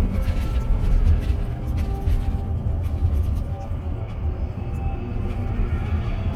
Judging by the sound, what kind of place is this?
bus